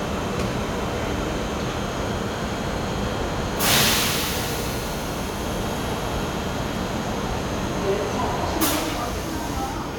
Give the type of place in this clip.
subway station